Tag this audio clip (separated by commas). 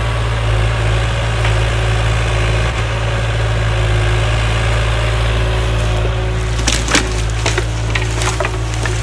tractor digging